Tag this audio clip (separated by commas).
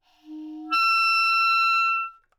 Wind instrument, Musical instrument, Music